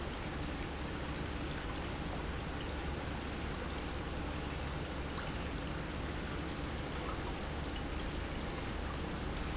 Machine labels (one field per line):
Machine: pump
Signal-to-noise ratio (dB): -6 dB